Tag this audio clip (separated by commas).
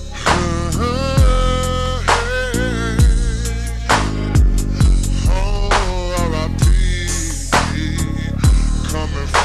Music